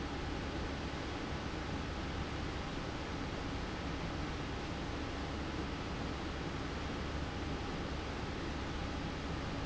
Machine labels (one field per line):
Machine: fan